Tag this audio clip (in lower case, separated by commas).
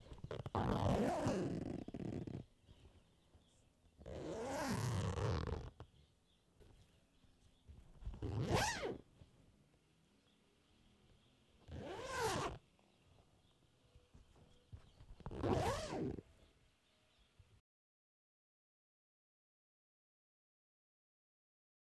domestic sounds, zipper (clothing)